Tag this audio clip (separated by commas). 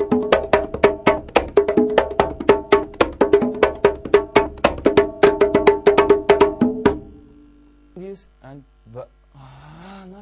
Music, Percussion, Wood block